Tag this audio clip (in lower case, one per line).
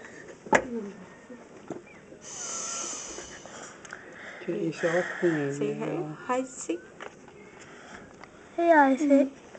speech
child speech